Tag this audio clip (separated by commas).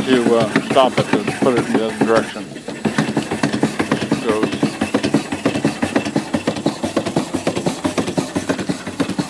Speech, Engine